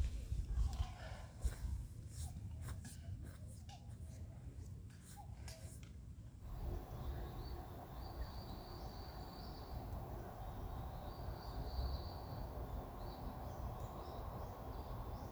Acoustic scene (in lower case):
park